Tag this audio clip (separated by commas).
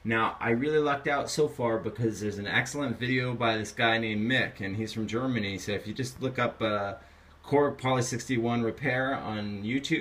Speech